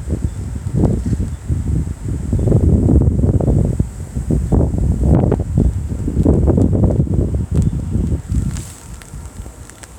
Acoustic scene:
residential area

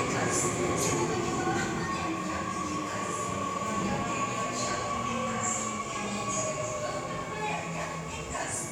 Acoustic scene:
subway station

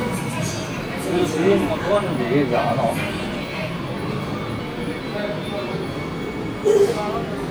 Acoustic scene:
subway station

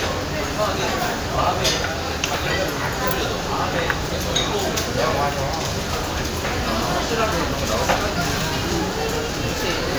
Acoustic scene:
crowded indoor space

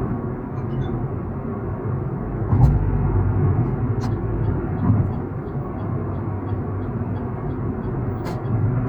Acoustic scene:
car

